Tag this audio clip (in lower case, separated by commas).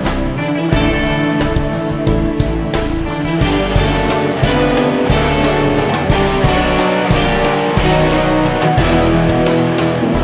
music, progressive rock